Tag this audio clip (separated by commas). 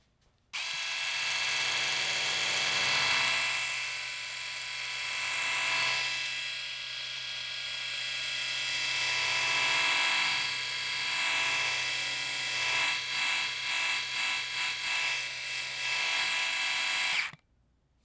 home sounds